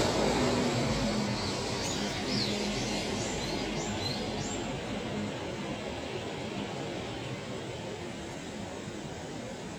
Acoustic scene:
street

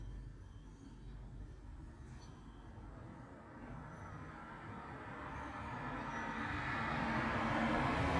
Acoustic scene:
street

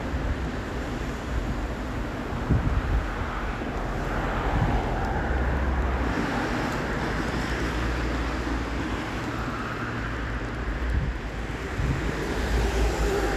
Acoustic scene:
street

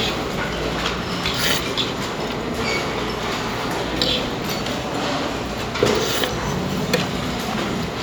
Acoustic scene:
restaurant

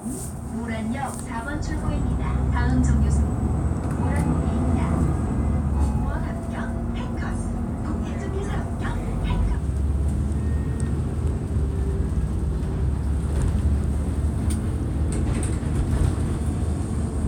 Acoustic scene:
bus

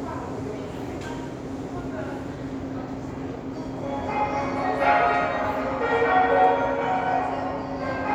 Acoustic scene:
subway station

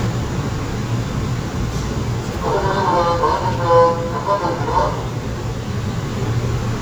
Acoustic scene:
subway train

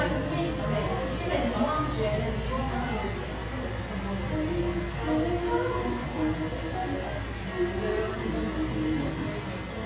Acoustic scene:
cafe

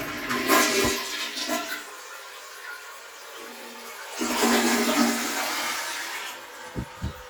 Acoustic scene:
restroom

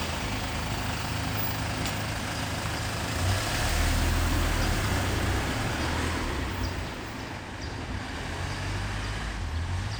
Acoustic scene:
residential area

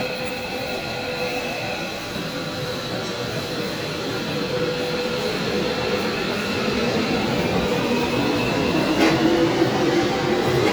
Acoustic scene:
subway station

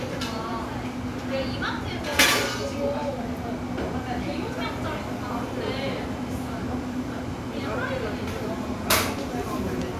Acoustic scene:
cafe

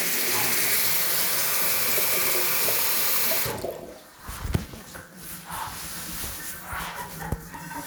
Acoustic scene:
restroom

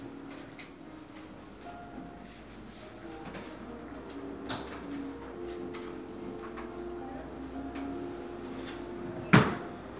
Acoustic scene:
crowded indoor space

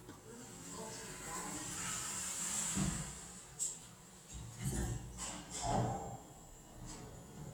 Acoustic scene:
elevator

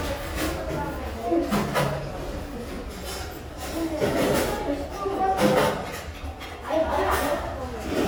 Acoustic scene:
restaurant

